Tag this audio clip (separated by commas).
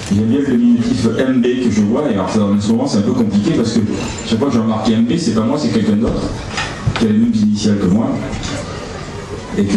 Speech